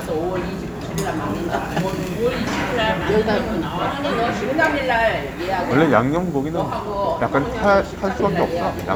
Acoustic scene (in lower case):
restaurant